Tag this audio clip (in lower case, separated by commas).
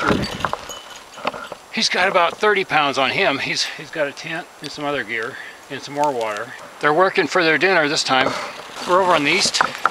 speech